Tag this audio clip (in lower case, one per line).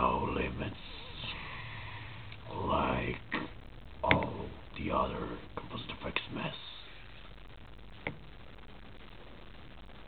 speech
inside a small room